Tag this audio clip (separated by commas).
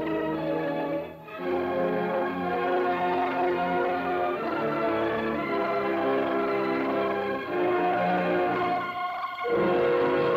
Music